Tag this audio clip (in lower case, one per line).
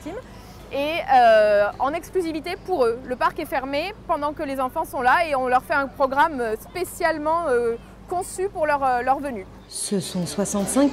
speech